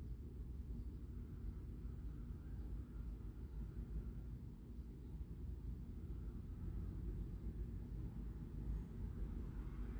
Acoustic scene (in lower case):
residential area